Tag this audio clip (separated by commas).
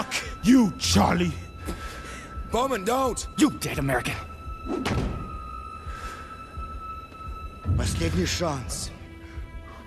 Music, Speech